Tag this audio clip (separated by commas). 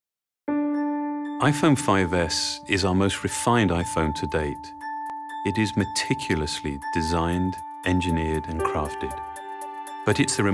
xylophone, Glockenspiel, Mallet percussion